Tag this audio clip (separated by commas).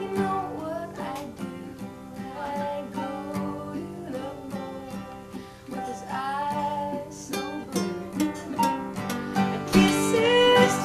Singing, Music, Flamenco